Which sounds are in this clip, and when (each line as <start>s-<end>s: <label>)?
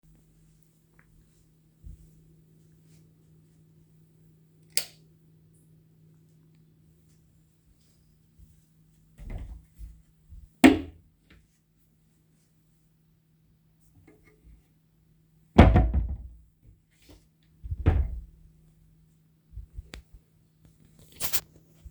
0.6s-4.5s: footsteps
4.6s-5.0s: light switch
5.6s-10.5s: footsteps
10.3s-11.4s: wardrobe or drawer
15.4s-16.4s: wardrobe or drawer
16.6s-17.3s: footsteps
17.6s-18.2s: wardrobe or drawer
18.5s-20.9s: footsteps